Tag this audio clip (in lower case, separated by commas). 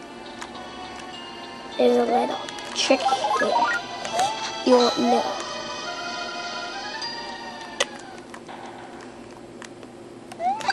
music, speech